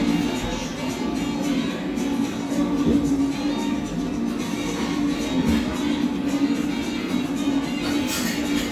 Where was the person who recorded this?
in a cafe